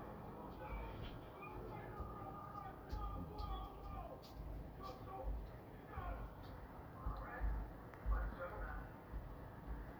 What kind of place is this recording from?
street